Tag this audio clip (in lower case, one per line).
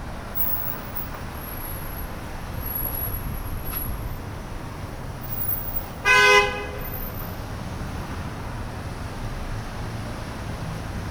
car
roadway noise
vehicle
alarm
vehicle horn
motor vehicle (road)